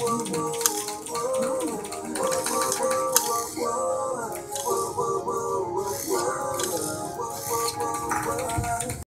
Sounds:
Music

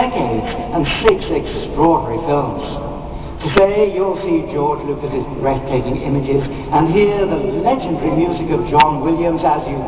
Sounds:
Narration, Male speech, Speech

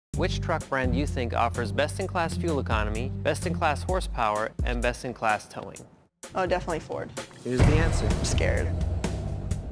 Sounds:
Speech, Music

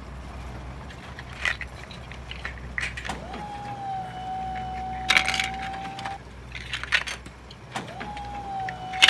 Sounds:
inside a small room, Truck

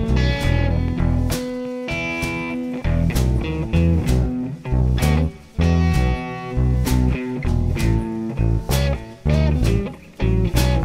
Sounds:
Acoustic guitar, Plucked string instrument, Electric guitar, Guitar, Musical instrument, Music

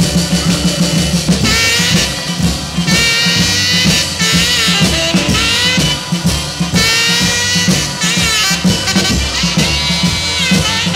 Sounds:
Rock and roll, Music

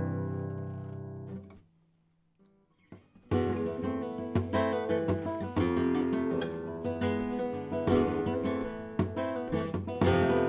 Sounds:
Musical instrument, Acoustic guitar, Plucked string instrument, Guitar, Music

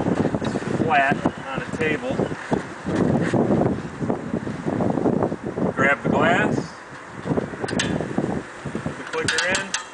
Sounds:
Wind noise (microphone), Wind

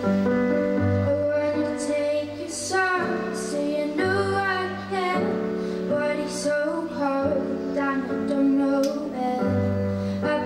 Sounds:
Female singing, Music

